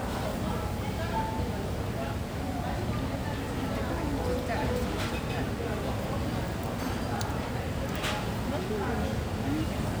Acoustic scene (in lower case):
cafe